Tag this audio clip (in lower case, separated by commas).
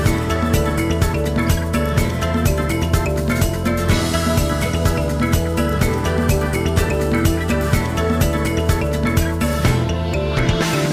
video game music, music